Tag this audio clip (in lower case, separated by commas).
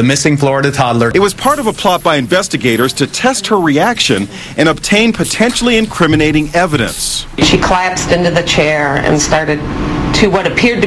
speech